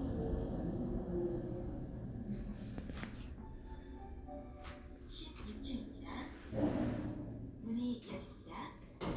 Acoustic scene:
elevator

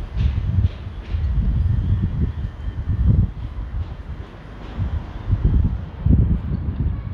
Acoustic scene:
residential area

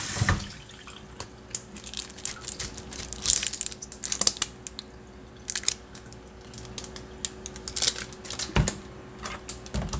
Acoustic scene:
kitchen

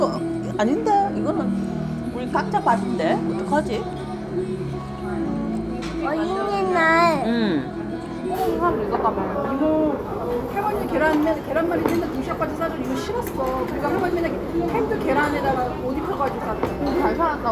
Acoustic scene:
restaurant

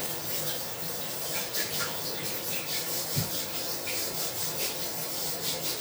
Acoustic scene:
restroom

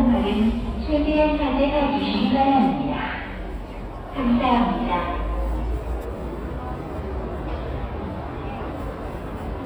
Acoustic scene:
subway station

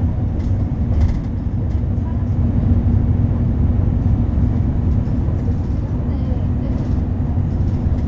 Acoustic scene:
bus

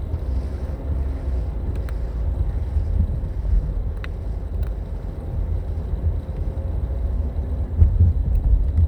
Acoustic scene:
car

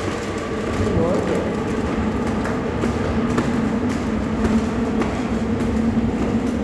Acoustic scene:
subway station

